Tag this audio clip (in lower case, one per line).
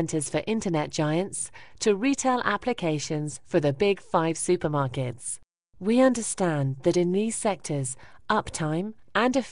speech